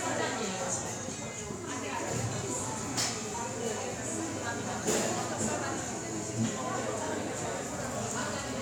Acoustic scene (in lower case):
cafe